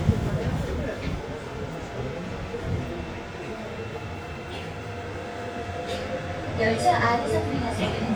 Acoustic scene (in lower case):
subway train